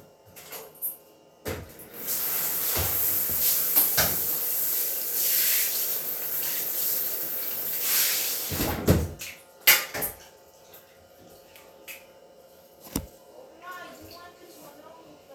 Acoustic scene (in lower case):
restroom